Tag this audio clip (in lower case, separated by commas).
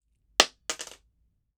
domestic sounds, coin (dropping)